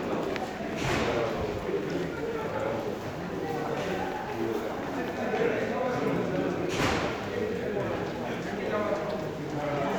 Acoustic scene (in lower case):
crowded indoor space